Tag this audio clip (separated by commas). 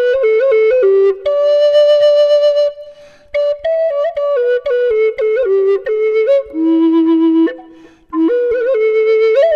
Music